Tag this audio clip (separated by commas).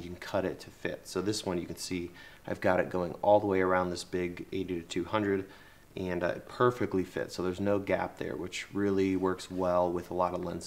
Speech